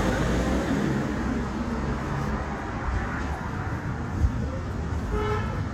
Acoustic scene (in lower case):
street